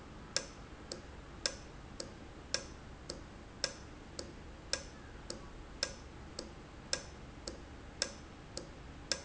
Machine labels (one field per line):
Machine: valve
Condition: normal